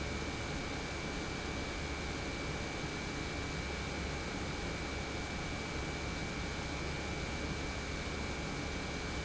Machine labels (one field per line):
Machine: pump